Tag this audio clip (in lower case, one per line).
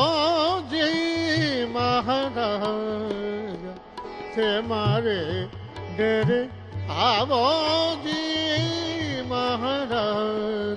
music